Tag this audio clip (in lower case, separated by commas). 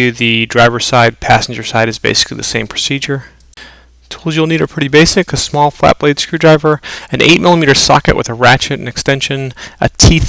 speech